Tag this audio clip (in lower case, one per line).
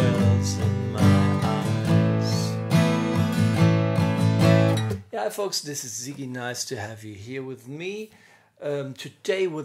guitar
musical instrument
music
speech
strum
plucked string instrument
acoustic guitar